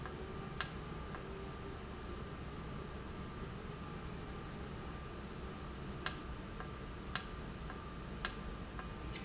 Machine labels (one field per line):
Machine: valve